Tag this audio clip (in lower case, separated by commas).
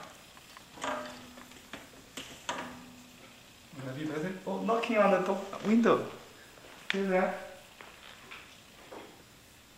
drawer open or close